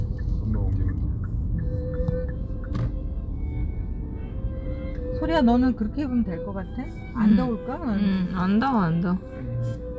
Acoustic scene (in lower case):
car